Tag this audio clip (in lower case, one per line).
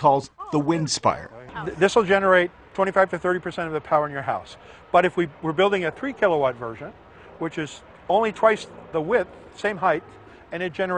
speech